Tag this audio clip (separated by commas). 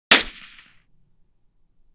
gunfire, Explosion